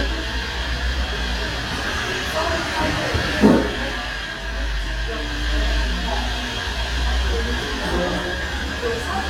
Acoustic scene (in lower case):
cafe